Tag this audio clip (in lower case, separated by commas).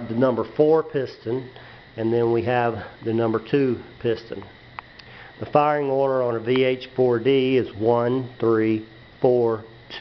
speech